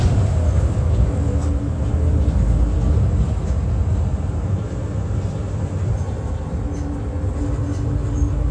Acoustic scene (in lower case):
bus